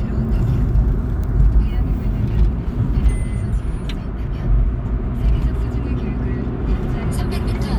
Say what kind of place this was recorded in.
car